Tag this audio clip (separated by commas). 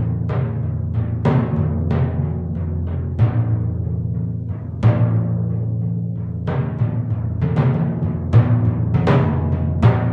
playing tympani